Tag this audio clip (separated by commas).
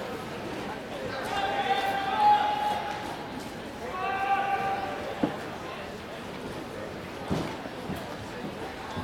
Run, Speech